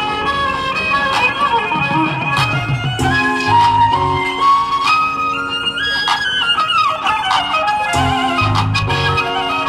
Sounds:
Music, Violin, Musical instrument

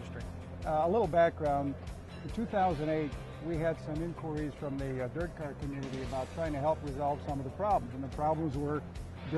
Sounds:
Music, Speech

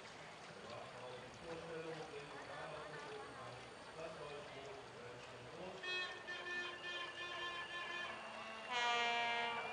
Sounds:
canoe, Speech, Boat, Vehicle

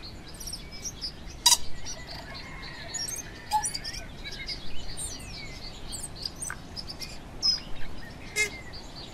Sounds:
bird call, bird chirping, Chirp, Bird

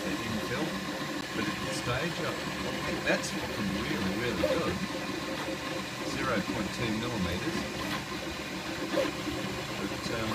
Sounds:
Speech

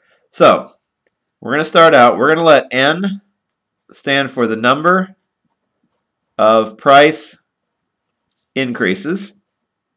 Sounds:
Speech

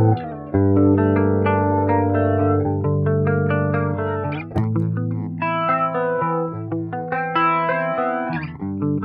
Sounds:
Guitar, Effects unit, Musical instrument, Music, Plucked string instrument

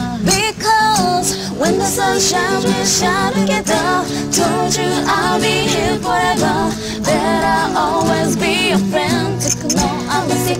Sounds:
Singing

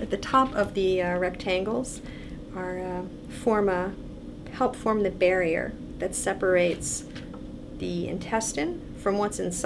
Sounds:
Speech

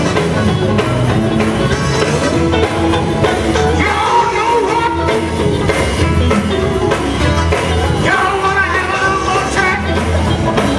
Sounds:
Music, Male singing

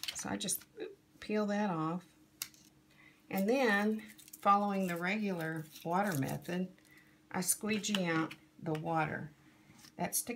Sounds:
Speech

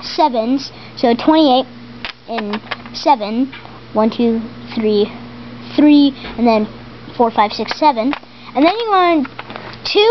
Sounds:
Speech

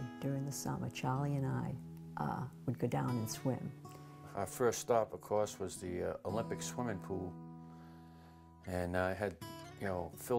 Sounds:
Music, Speech

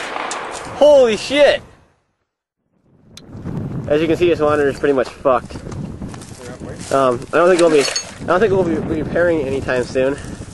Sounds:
Speech

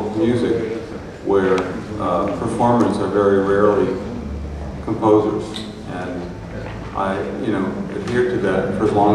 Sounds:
Speech

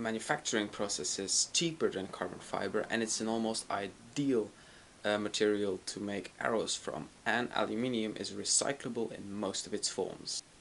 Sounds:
Speech

